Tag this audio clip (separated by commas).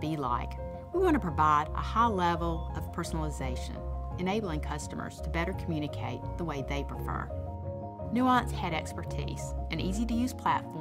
Speech, woman speaking, Music